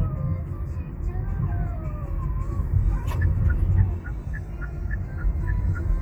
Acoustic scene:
car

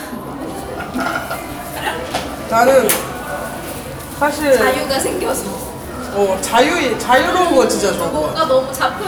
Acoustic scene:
cafe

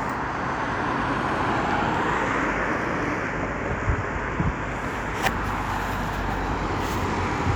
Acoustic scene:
street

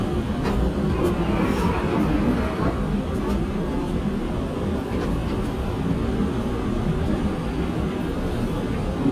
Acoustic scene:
subway train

